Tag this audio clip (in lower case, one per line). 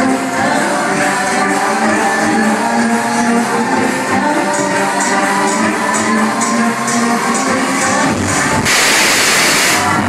music